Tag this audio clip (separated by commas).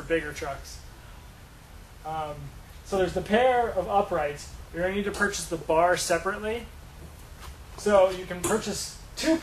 Speech